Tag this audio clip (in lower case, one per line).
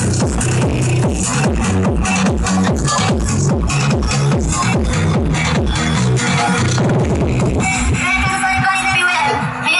music